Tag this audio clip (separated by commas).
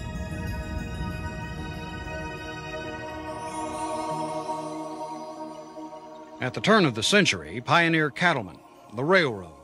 Speech, Music